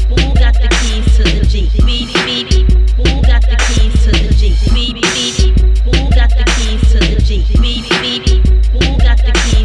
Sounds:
Music

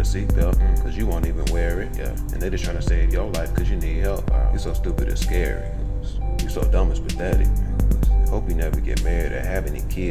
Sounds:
rapping

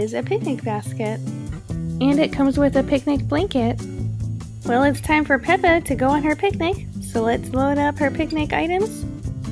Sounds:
Speech, Music

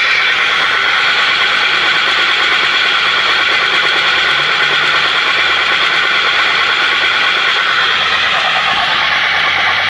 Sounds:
Heavy engine (low frequency), Vehicle

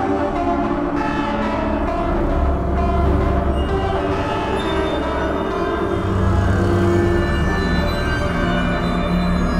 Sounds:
Music, Soundtrack music

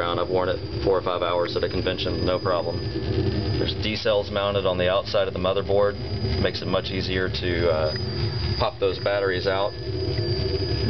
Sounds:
Speech, inside a small room

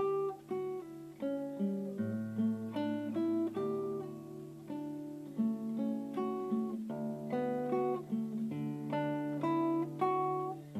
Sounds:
Guitar, Musical instrument, Strum, Acoustic guitar, Plucked string instrument, Music

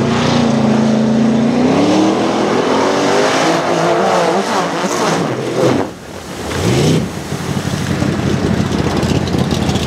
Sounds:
outside, rural or natural, Race car, Car, Vehicle

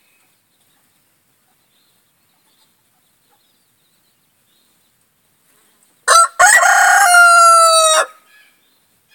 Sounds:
chicken crowing, Fowl, Crowing, Chicken

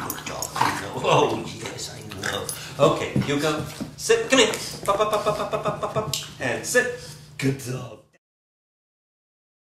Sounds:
Dog, pets, Yip, Speech, Animal

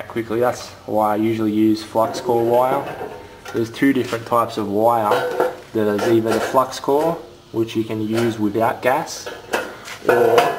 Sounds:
Speech

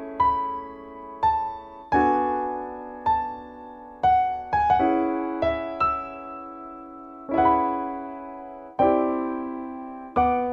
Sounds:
Musical instrument, Keyboard (musical), Electric piano, Music, Piano, playing piano

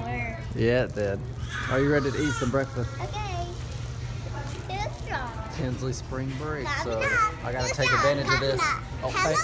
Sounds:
inside a public space, Speech, kid speaking

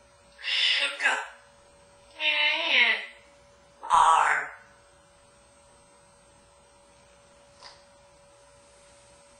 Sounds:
parrot talking

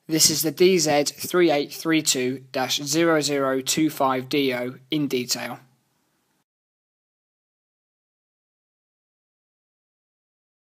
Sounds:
Speech

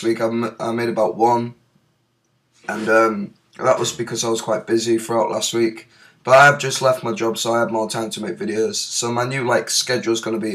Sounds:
Speech

